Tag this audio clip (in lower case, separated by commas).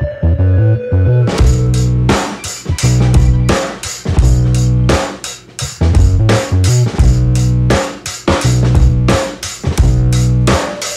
music, inside a small room